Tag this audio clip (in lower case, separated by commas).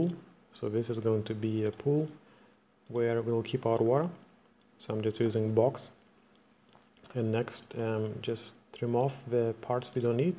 speech